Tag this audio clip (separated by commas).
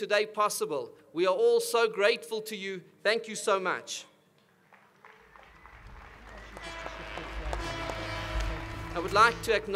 Music, Speech, Male speech, monologue